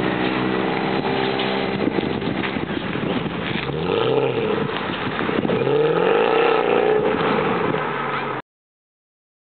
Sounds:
driving motorcycle
motorcycle

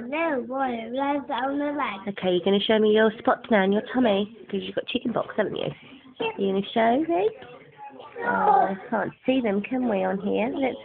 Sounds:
speech

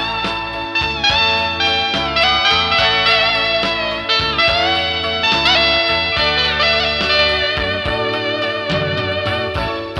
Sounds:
music
middle eastern music

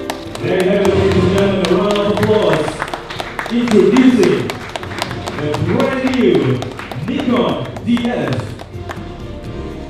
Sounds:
music
speech

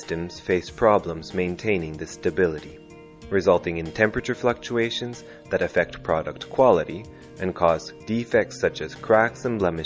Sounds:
speech
music

